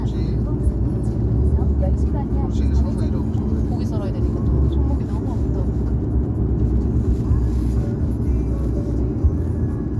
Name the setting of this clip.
car